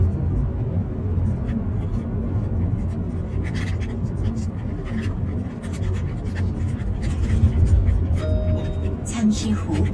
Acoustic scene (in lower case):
car